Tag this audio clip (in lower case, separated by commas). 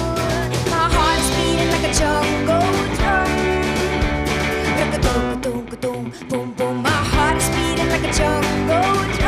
music, psychedelic rock